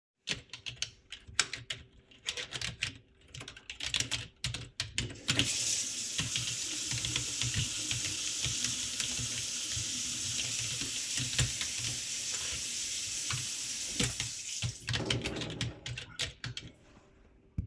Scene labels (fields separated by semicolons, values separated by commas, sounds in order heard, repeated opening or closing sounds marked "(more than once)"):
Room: kitchen; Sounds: keyboard typing, running water